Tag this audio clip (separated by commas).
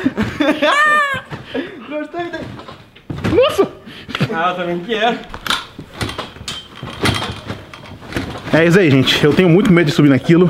bouncing on trampoline